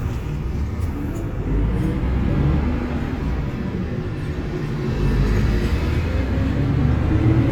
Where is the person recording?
on a bus